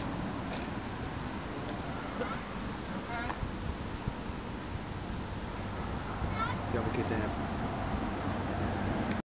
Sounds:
Speech

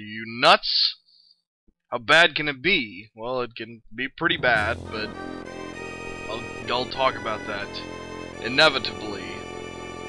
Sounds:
Music, Speech

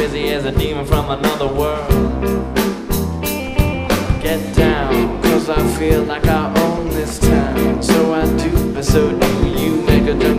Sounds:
Music

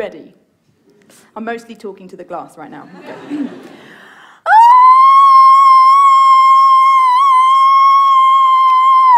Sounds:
Speech

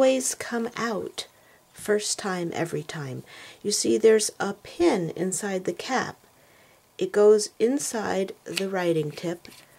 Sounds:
Speech

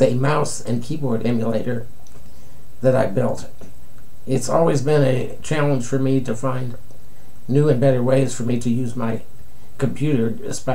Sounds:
Speech

